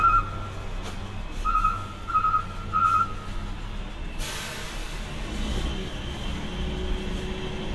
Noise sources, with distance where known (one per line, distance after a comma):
unidentified alert signal, near